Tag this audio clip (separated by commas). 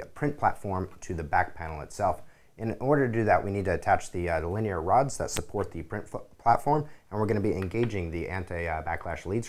Speech